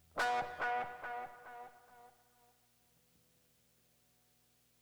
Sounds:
Plucked string instrument, Musical instrument, Guitar, Music

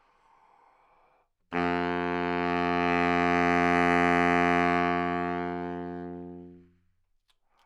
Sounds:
Wind instrument, Musical instrument, Music

